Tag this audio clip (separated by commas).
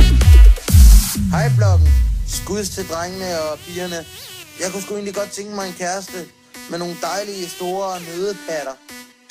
Music, Speech